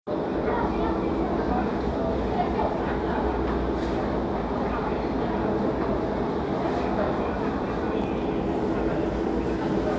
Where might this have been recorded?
in a crowded indoor space